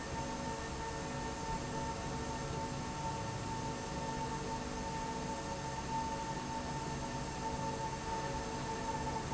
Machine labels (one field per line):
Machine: slide rail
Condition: normal